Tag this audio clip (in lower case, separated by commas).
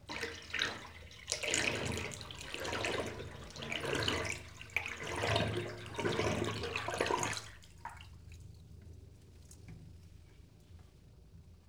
home sounds, bathtub (filling or washing)